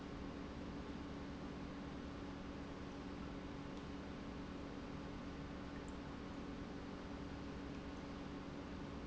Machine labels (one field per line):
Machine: pump